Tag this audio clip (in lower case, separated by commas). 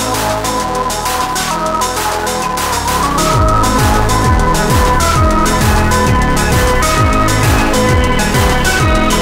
video game music, music